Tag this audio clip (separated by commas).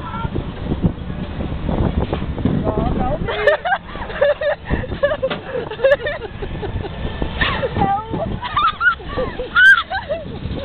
Speech